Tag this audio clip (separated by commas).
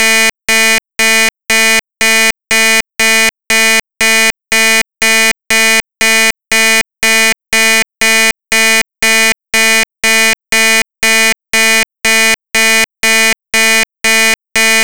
Alarm